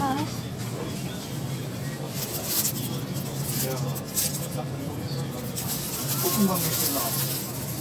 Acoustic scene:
crowded indoor space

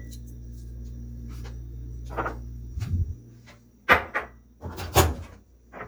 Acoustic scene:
kitchen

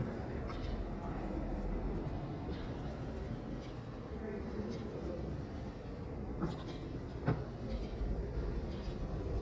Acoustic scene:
residential area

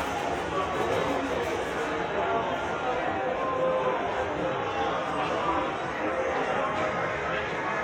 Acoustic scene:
subway station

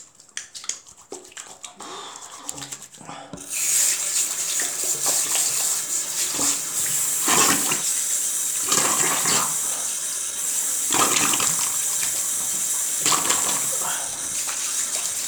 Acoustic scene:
restroom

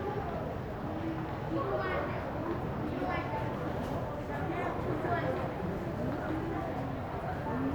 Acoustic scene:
crowded indoor space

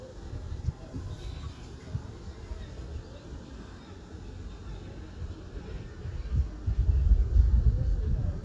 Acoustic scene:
residential area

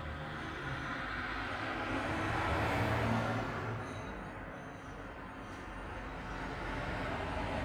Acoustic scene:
street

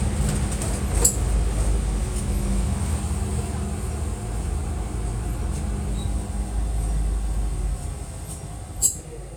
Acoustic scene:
bus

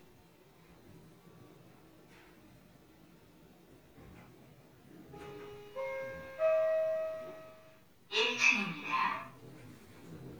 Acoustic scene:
elevator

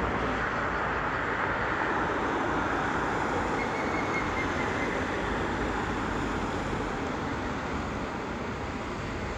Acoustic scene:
street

